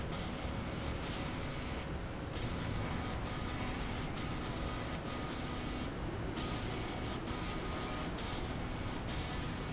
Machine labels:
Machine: slide rail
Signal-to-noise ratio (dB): -6 dB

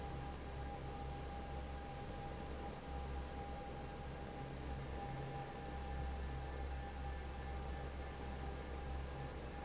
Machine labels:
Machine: fan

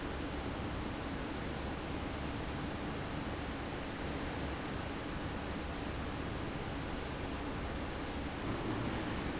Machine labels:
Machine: fan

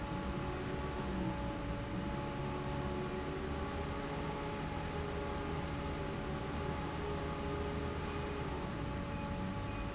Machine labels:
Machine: fan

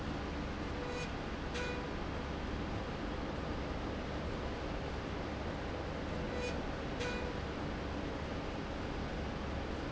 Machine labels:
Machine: slide rail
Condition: normal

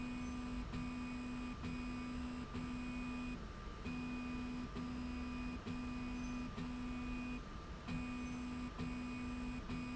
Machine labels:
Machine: slide rail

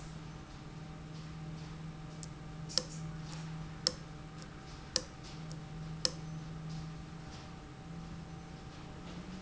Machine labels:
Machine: valve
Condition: abnormal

